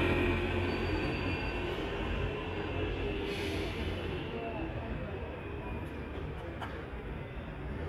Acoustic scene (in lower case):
street